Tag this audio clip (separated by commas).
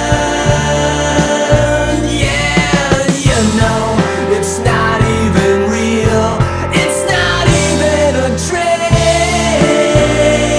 Music, Independent music